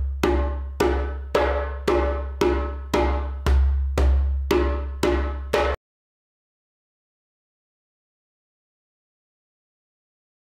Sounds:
playing djembe

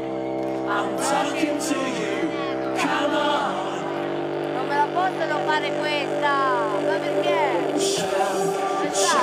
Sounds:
speech
music

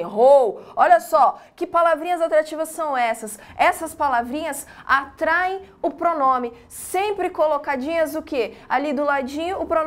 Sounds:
speech

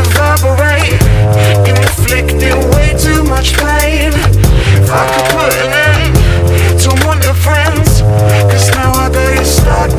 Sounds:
music

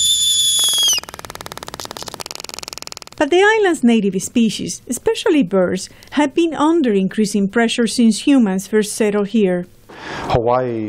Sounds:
bird
speech

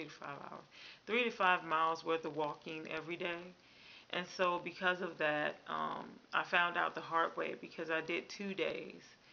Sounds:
speech

